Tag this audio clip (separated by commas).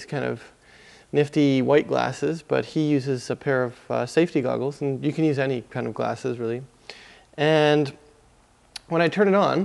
Speech